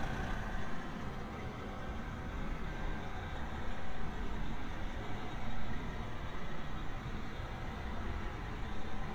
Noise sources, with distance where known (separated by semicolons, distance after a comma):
engine of unclear size